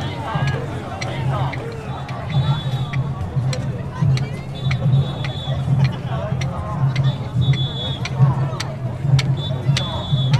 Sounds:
people marching

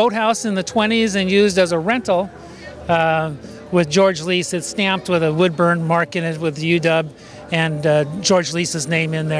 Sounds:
Music, Speech

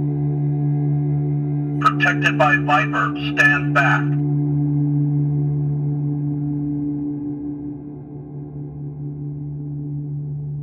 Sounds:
Speech

